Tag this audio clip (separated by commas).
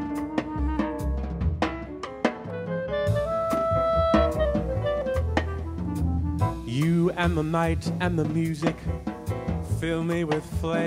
Jazz, Music